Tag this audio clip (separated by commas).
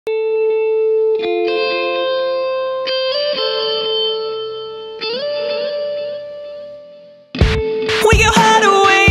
Singing, Music, Electric guitar